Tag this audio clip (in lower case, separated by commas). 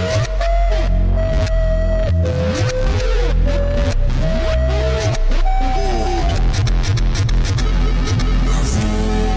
music